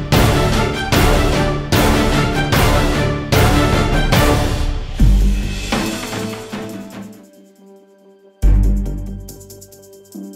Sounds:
music

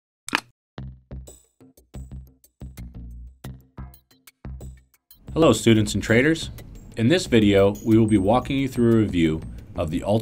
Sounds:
speech, music

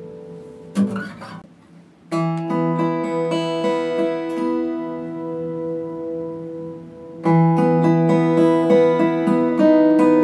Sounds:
music

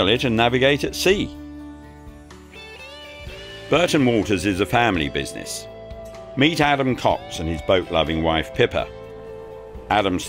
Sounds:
music, speech

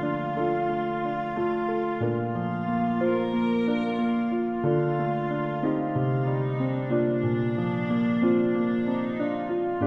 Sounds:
violin, musical instrument, music

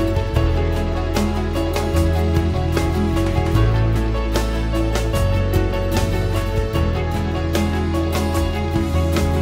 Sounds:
music

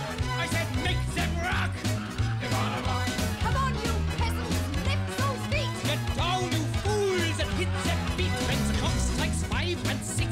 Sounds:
laughter

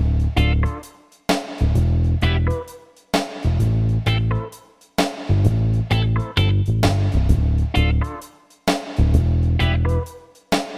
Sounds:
music

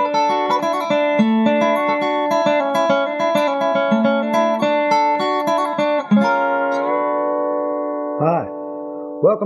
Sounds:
music, speech

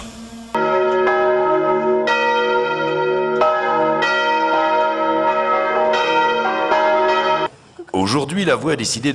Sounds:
speech, music

